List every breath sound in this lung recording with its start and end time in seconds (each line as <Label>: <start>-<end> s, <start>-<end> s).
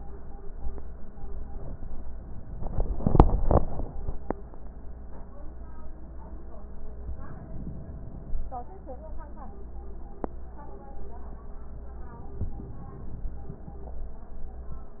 Inhalation: 7.08-8.41 s, 12.02-13.35 s